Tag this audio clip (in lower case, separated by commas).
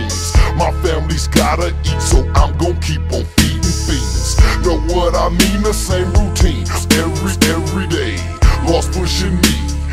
music, rapping